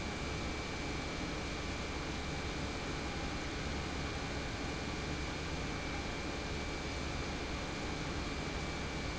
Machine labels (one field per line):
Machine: pump